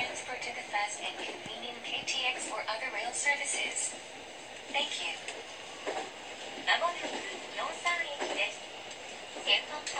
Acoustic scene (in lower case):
subway train